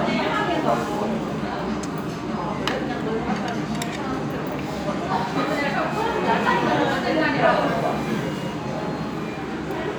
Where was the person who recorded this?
in a restaurant